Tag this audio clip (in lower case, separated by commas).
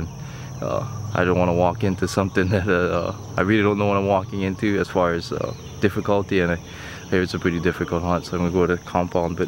speech